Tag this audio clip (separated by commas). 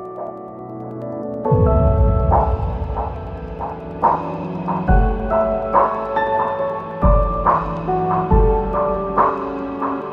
Music, Soundtrack music